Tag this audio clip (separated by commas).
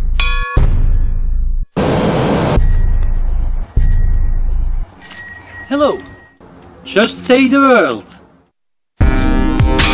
Vehicle, Speech, Music, Vehicle horn